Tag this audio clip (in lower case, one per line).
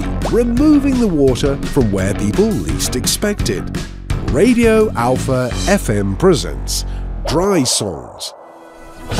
speech
music